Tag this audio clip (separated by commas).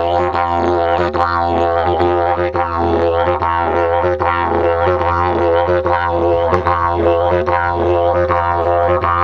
playing didgeridoo